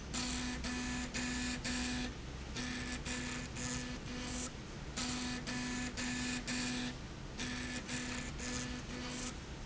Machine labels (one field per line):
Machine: slide rail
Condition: abnormal